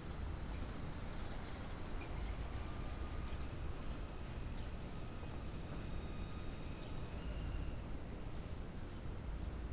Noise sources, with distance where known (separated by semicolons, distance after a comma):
background noise